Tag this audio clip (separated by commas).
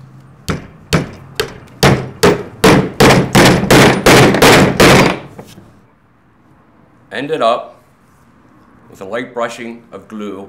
hammering nails